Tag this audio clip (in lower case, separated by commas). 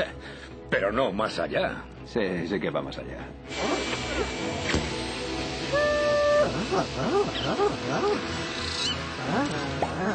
speech, music